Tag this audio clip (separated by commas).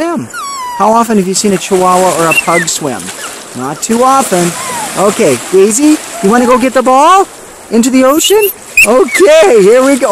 surf